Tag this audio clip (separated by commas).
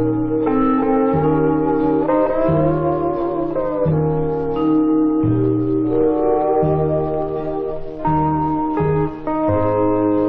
Music